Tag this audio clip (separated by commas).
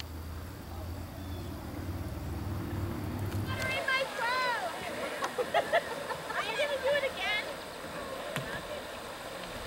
Vehicle, Speech